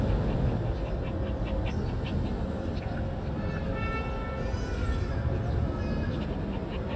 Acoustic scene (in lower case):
residential area